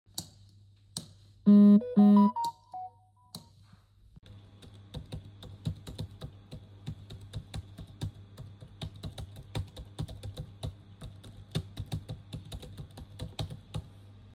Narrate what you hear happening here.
I entered the living room in the evening and turned all the four switches and I received a notification on my phone.